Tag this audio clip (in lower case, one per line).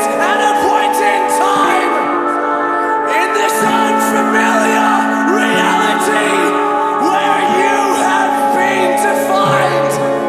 music